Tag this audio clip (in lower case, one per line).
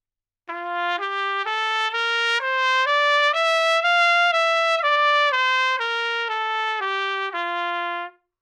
brass instrument
trumpet
music
musical instrument